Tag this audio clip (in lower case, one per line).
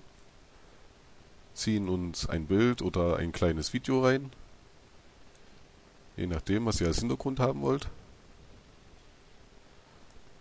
speech